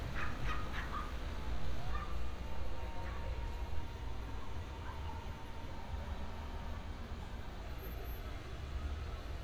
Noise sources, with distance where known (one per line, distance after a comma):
dog barking or whining, far